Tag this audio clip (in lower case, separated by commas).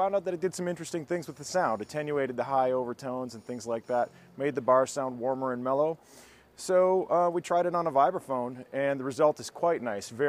musical instrument, speech